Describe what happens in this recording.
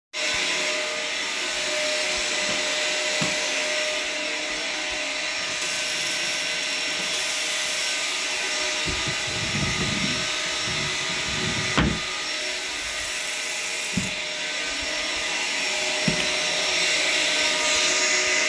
the vaccum is running in the hallway, i turn on the bathroom water tap and open a drawer. i close the drawer and turn off the water.